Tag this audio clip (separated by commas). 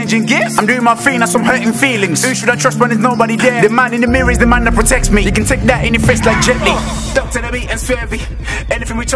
Music, Rapping